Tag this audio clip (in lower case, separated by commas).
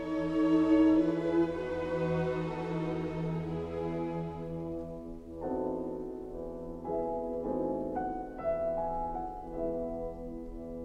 music, harpsichord